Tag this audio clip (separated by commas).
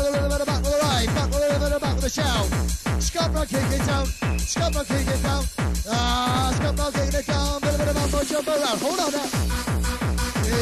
Music, Techno